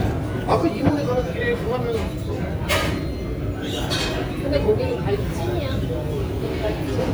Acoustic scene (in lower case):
restaurant